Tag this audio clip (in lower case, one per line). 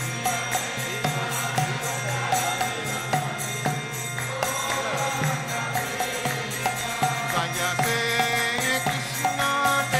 folk music
music